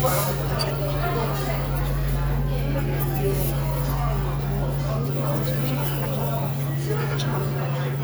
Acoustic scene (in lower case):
restaurant